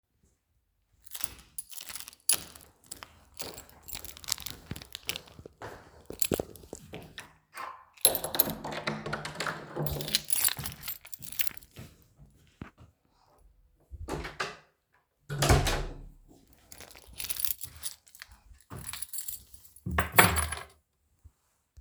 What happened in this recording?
I was walking towards the door, opened the door with my keys, closed the door, set the keys down.